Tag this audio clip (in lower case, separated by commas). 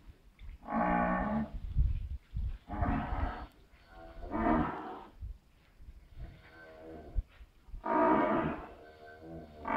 cow lowing